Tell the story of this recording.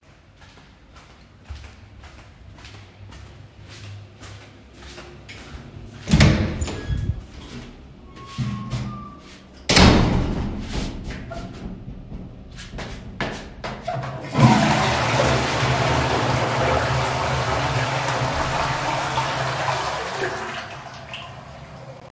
While walking in the hallway, footsteps approach the toilet door. The toilet door is opened, the person enters, and the toilet is flushed.